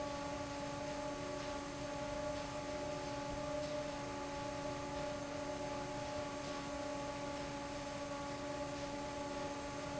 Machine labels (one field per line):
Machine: fan